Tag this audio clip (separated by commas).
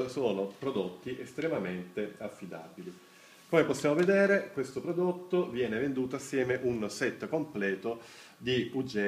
Speech